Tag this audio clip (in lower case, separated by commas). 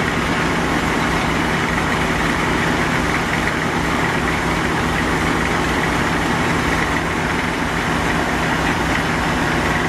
vehicle